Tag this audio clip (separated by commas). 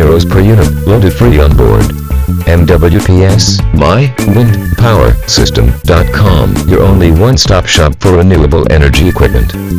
Music, Speech